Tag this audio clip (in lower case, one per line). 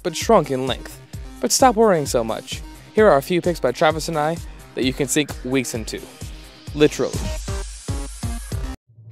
music
speech